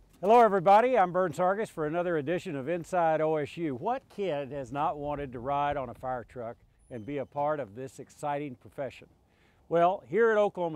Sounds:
speech

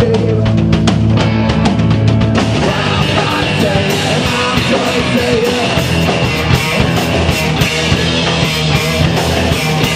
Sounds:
music
soundtrack music

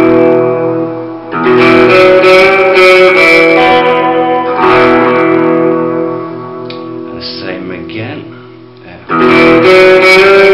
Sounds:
music
speech
guitar
plucked string instrument
inside a small room
musical instrument

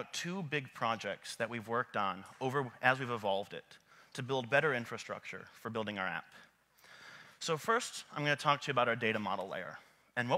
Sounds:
speech

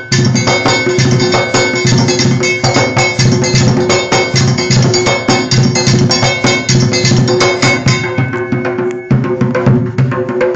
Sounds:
percussion
music

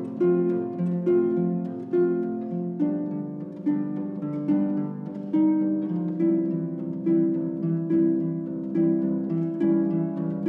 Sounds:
music

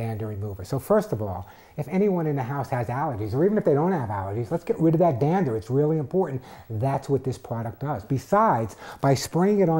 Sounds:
speech

